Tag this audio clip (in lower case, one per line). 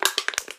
crushing